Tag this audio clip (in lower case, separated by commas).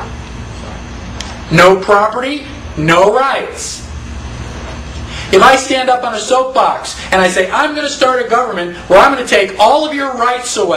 speech, narration